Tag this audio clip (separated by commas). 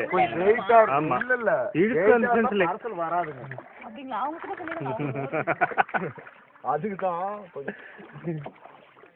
Speech